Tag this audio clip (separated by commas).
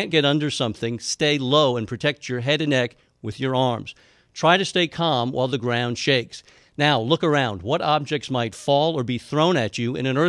Speech